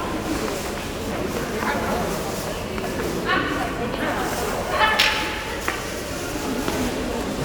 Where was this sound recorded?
in a crowded indoor space